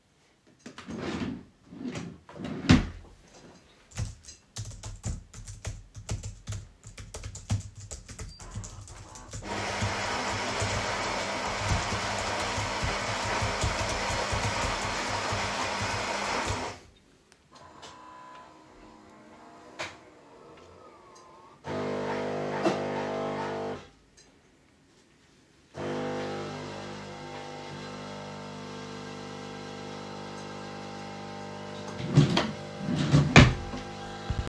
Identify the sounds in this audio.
wardrobe or drawer, keyboard typing, coffee machine